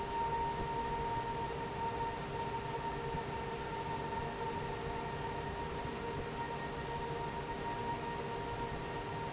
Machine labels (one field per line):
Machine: fan